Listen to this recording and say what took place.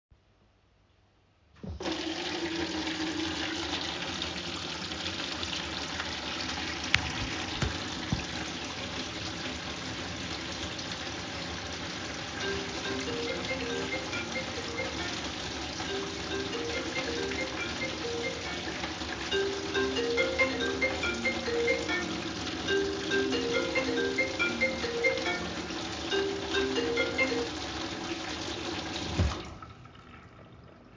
I opened the kitchen tap and while the water was running my phone started ringing. I stopped the ringing and then closed the tap.